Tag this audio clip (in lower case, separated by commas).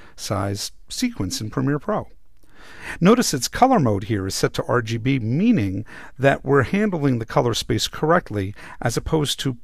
narration, speech